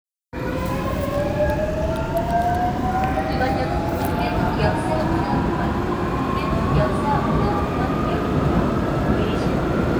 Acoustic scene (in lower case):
subway train